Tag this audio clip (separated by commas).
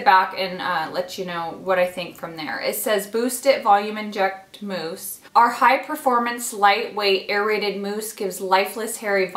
Speech